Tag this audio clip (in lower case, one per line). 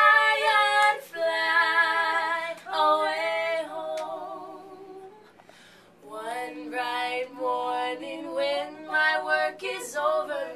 music